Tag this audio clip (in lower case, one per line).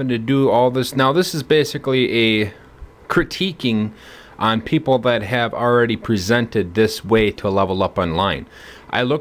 speech